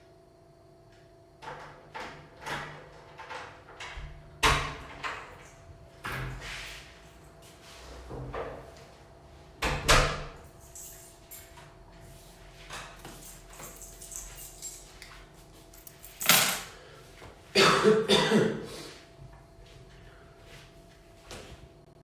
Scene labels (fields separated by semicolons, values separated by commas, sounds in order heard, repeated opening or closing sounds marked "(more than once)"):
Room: kitchen, hallway; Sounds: door, keys, footsteps